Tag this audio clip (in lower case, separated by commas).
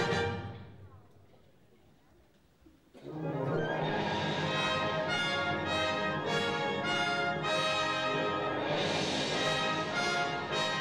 music